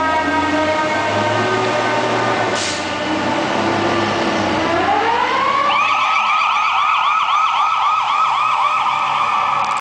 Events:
0.0s-9.8s: fire truck (siren)
0.0s-9.8s: wind
1.6s-1.7s: tick
2.5s-2.8s: air brake
9.6s-9.7s: tick

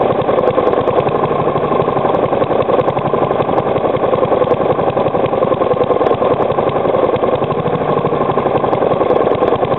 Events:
0.0s-9.7s: lawn mower

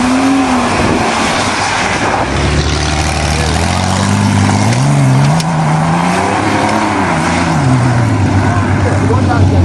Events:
0.0s-7.7s: vroom
0.0s-9.6s: medium engine (mid frequency)
0.0s-9.6s: wind
0.6s-1.0s: wind noise (microphone)
1.8s-2.4s: wind noise (microphone)
3.4s-4.1s: human voice
5.2s-5.4s: tick
6.6s-6.7s: tick
8.8s-9.5s: male speech

